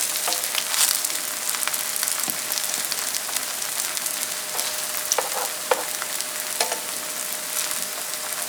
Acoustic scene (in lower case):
kitchen